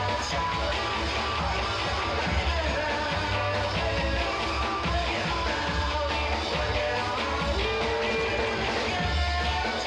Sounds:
music

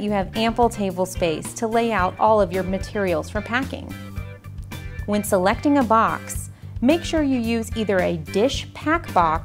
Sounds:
speech, music

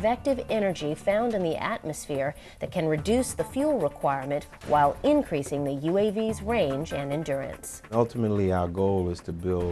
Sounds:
music, speech

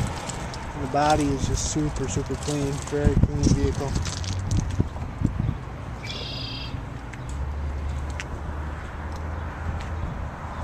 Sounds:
speech

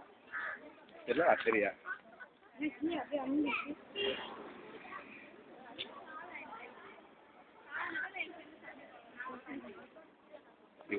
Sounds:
outside, rural or natural, speech

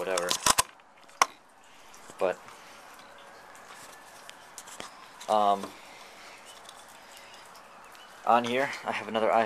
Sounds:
speech, outside, rural or natural

